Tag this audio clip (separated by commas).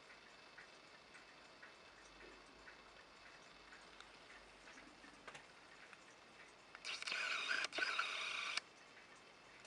Tick-tock